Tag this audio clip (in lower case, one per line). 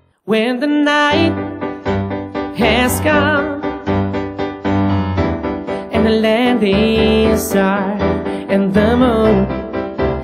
inside a small room
piano
music
singing